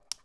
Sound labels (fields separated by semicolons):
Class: switch; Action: being turned on; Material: plastic